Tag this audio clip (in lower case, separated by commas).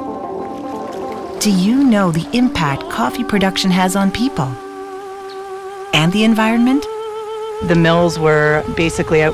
speech, stream, music